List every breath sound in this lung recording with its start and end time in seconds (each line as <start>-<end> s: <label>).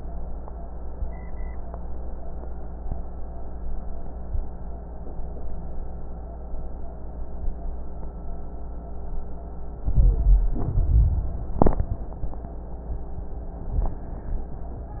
9.79-10.72 s: rhonchi
9.83-10.70 s: inhalation
10.76-11.69 s: exhalation
10.76-11.69 s: rhonchi